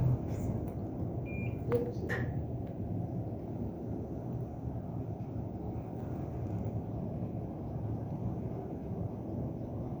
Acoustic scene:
elevator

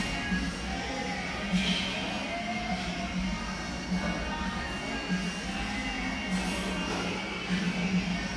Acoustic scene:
cafe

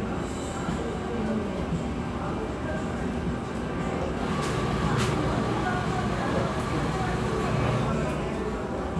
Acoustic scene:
cafe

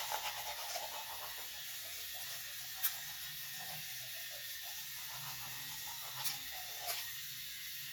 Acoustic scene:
restroom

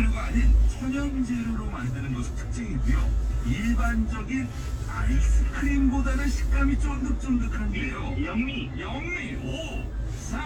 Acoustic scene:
car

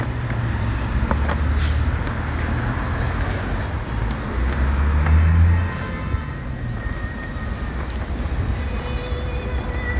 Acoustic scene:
street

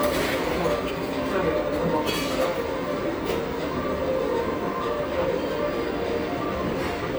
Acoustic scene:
restaurant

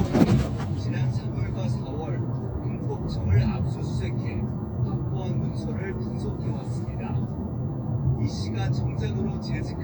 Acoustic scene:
car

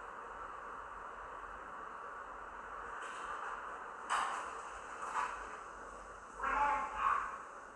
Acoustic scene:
elevator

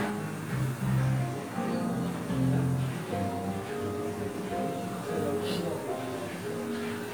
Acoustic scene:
cafe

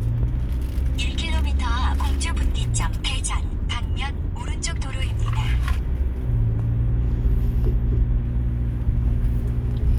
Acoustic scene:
car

